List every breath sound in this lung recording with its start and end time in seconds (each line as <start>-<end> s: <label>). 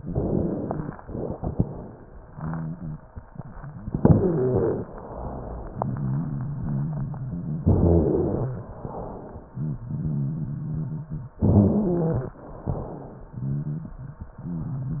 0.00-0.91 s: inhalation
0.00-0.91 s: crackles
3.98-4.90 s: inhalation
3.98-4.90 s: rhonchi
4.91-5.76 s: exhalation
5.16-7.62 s: rhonchi
7.68-8.60 s: inhalation
7.68-8.60 s: rhonchi
8.65-9.50 s: exhalation
9.39-11.41 s: rhonchi
11.42-12.33 s: inhalation
11.42-12.33 s: rhonchi
12.45-13.29 s: exhalation
12.62-14.00 s: rhonchi
14.38-15.00 s: rhonchi